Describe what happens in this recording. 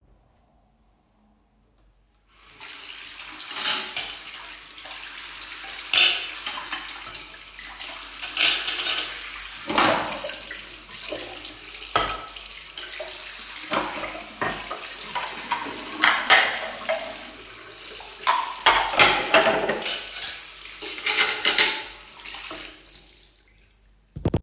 Water is running from the kitchen tap while I am washing the dishes and the cutlery. Both sounds can be heard simultaneously.